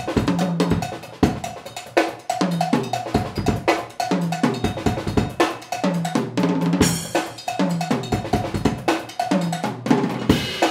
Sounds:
Wood block, Musical instrument, playing drum kit, Drum kit, Drum, Music

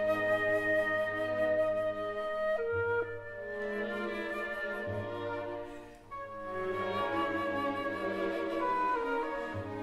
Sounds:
Music, Flute

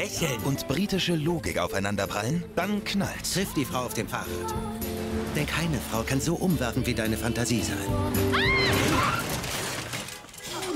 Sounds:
Speech, Music

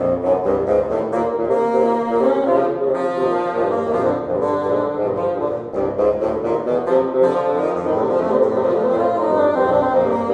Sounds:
playing bassoon

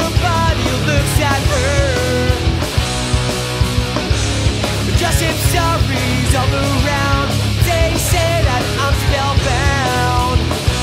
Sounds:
Exciting music, Music

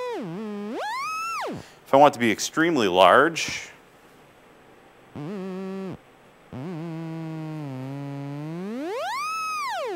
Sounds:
playing theremin

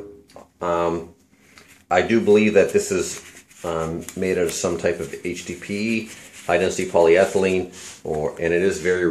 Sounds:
Speech

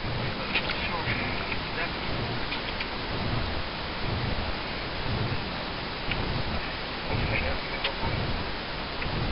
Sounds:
Speech

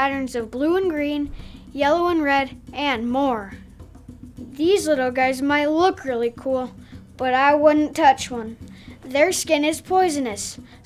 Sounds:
Music, Speech

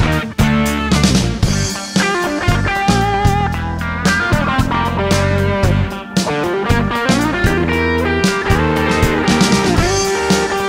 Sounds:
Music

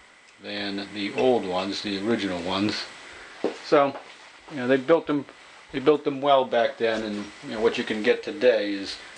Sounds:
Speech

